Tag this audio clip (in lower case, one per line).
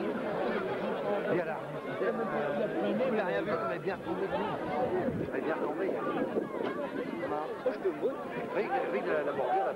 speech